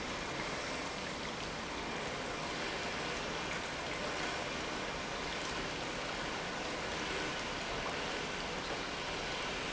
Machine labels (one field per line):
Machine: pump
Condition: normal